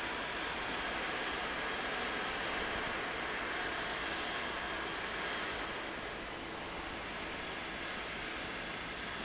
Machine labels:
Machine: fan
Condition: abnormal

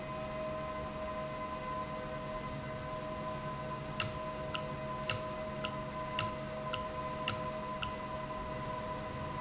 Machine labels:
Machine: valve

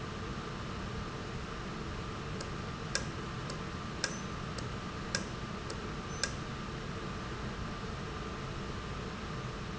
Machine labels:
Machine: valve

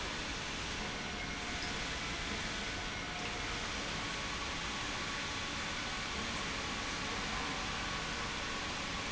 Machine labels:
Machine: pump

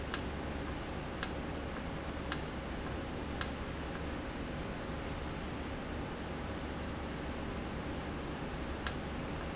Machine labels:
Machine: valve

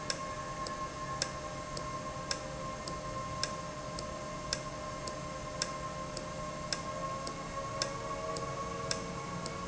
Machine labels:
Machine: valve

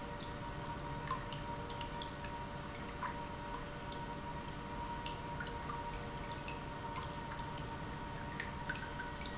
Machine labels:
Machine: pump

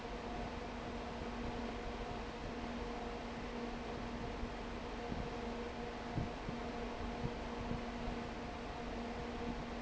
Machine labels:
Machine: fan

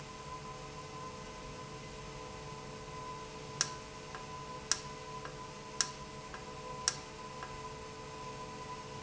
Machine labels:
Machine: valve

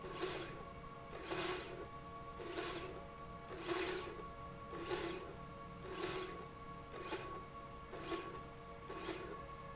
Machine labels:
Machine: slide rail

